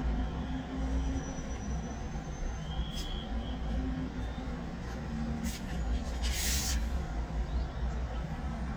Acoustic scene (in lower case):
residential area